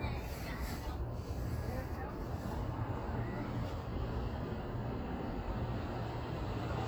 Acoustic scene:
street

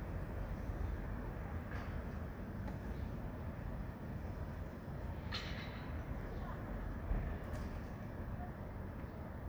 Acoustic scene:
residential area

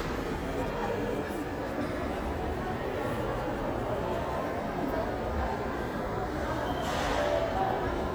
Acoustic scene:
crowded indoor space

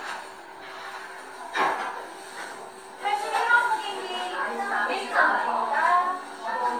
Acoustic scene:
cafe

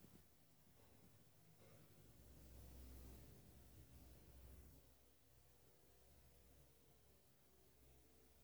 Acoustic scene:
elevator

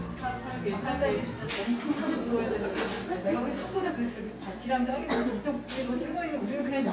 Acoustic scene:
cafe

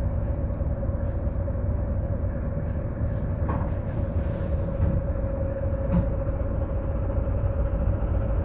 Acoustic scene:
bus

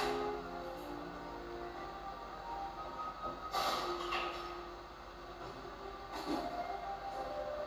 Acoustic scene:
cafe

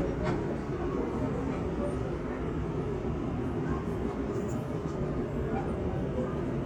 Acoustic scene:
subway train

